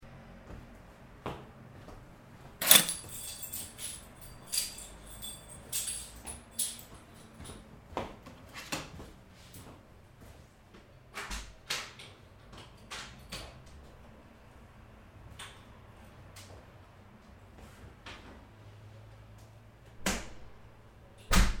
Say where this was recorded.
hallway